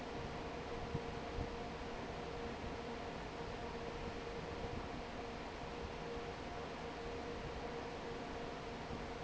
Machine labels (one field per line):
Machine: fan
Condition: normal